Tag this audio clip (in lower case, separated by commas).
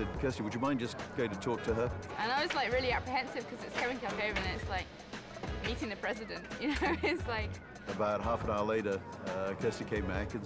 music, speech